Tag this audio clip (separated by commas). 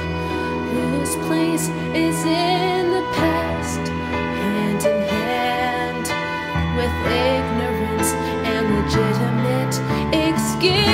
Sad music, Music